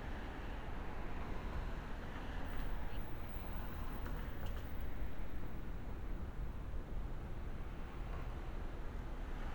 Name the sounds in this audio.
background noise